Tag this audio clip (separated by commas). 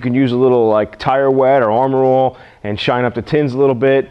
Speech